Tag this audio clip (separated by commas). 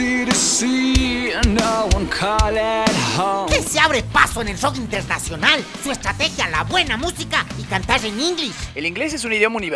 Music, Speech